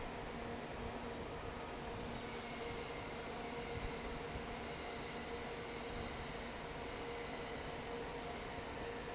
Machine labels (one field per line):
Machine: fan